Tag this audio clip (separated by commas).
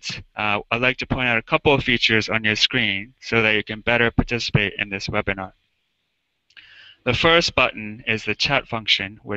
Speech